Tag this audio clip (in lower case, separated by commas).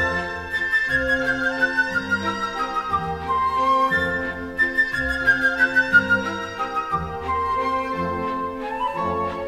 music